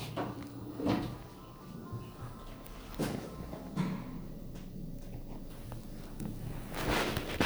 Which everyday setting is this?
elevator